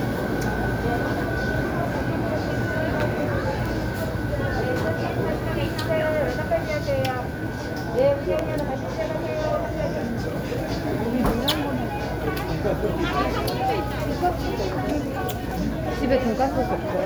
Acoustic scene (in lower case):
crowded indoor space